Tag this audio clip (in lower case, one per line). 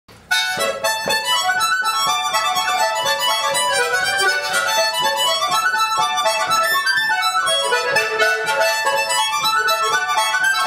accordion
harmonica
woodwind instrument